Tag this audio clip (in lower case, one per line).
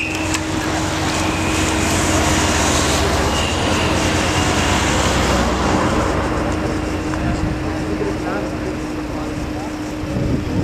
car
speech
vehicle